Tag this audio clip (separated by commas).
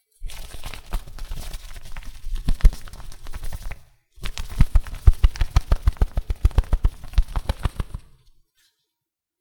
Wild animals, Bird, Animal